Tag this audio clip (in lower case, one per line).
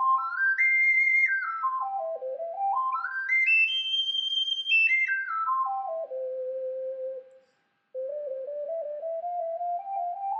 harmonica
music